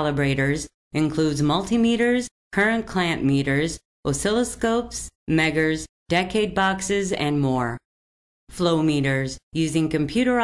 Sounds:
speech synthesizer

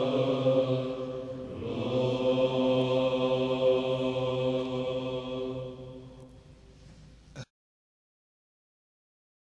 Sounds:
chant, choir

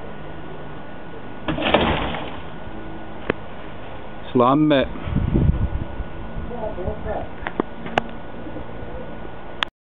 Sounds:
speech

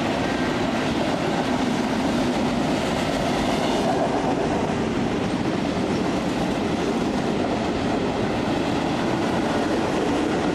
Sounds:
clickety-clack, train, rail transport, train wagon

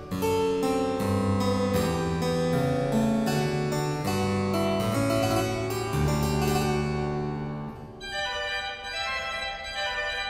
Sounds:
harpsichord, playing harpsichord, music

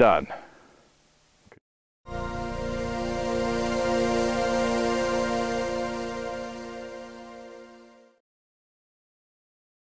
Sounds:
music, speech

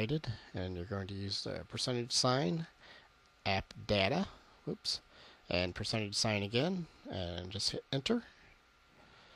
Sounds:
speech

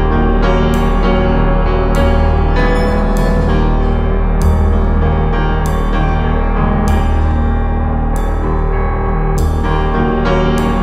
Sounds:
music

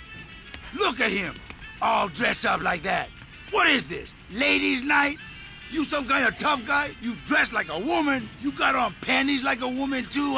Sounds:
music, speech

